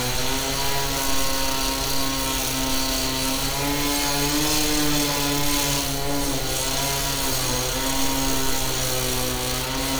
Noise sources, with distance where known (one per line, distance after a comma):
unidentified powered saw, near